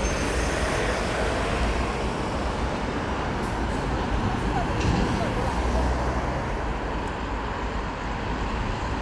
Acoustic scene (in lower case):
street